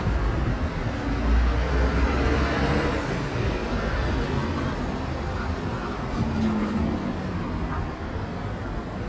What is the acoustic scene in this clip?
street